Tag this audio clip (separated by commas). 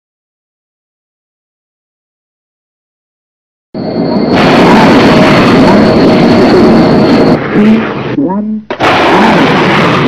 Speech